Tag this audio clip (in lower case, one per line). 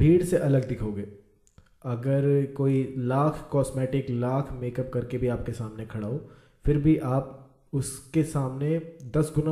speech